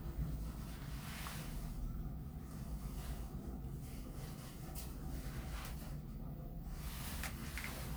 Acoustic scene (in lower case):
elevator